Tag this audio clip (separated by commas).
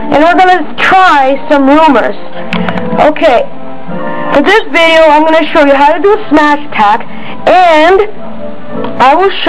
Music, Speech